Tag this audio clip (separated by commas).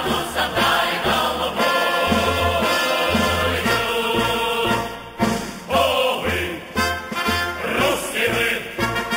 people marching